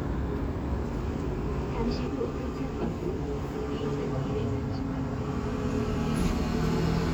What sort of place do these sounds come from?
street